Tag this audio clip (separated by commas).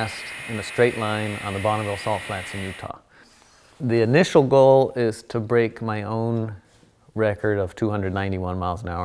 Speech